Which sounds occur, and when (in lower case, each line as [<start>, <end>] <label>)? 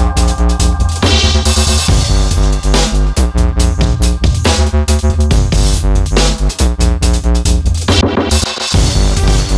[0.00, 9.55] music